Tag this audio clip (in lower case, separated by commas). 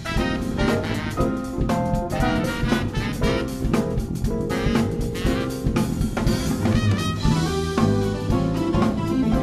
jazz, musical instrument, music